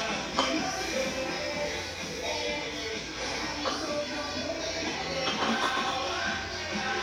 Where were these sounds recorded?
in a restaurant